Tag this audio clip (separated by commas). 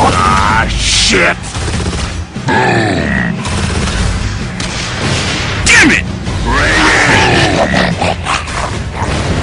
Speech